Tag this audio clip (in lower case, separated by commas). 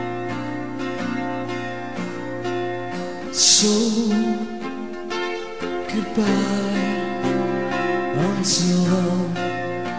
music